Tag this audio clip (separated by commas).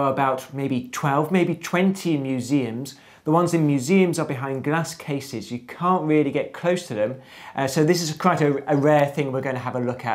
Speech